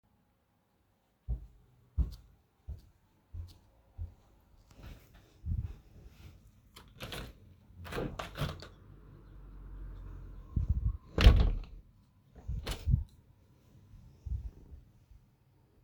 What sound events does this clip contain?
footsteps, window